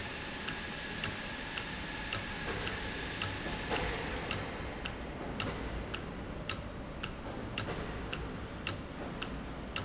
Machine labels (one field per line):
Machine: valve